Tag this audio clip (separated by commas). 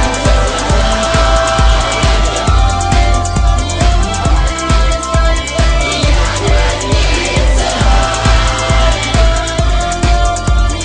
Music, Rock music